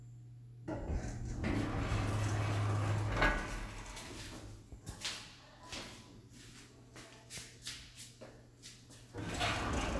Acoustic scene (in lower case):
elevator